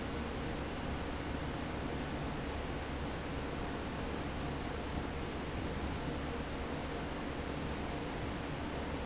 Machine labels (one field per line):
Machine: fan